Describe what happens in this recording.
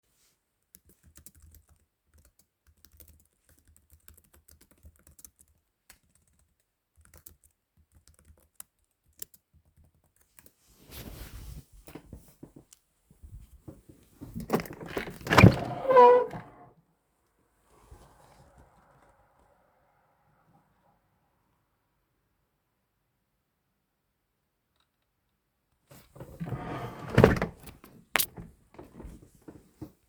I was typing on my laptop keyboard and then stood up to open the roof window. After some time, I closed it again.